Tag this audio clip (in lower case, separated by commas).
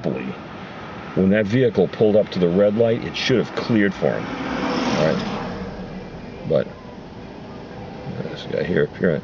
roadway noise, vehicle, speech